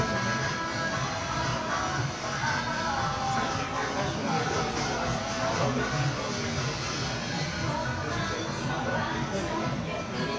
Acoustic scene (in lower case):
crowded indoor space